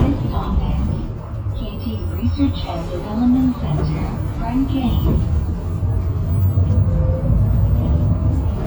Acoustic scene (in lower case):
bus